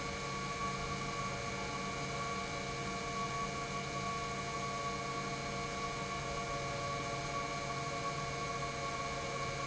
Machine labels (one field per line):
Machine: pump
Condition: normal